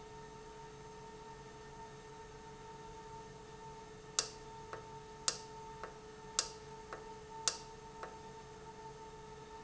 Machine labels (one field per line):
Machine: valve